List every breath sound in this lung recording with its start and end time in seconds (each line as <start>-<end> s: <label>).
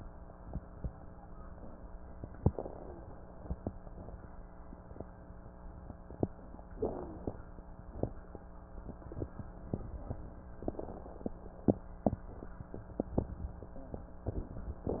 2.32-3.30 s: inhalation
2.71-3.10 s: wheeze
6.69-7.18 s: wheeze
6.69-7.66 s: inhalation
10.59-11.89 s: inhalation
10.59-11.89 s: crackles
13.74-14.17 s: wheeze